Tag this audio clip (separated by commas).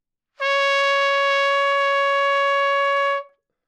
Trumpet, Brass instrument, Music, Musical instrument